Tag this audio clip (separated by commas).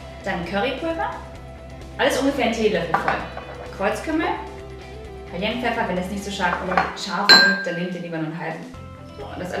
Music, Speech